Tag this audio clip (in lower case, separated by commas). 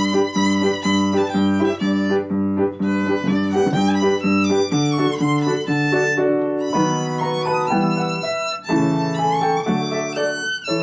musical instrument, music, violin